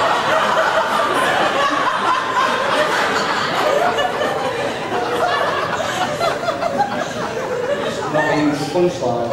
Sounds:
man speaking
speech

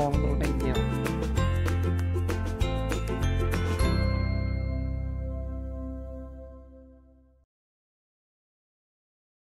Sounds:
music

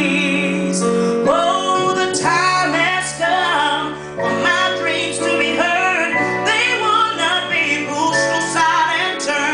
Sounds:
female singing
music

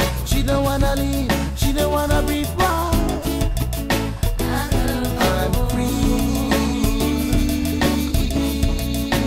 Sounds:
music
soul music

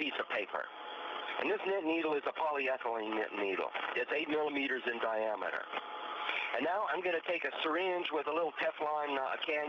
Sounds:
speech

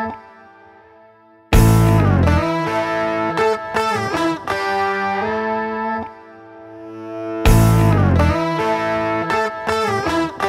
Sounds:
punk rock
music

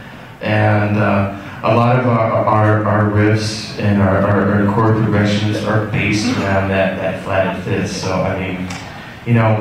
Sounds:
speech

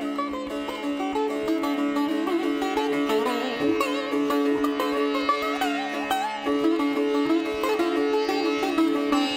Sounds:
playing sitar

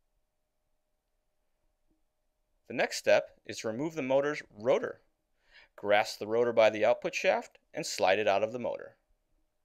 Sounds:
speech

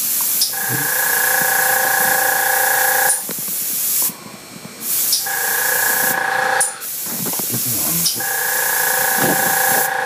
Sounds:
speech

